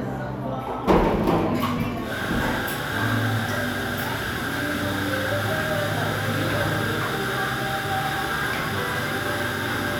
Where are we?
in a cafe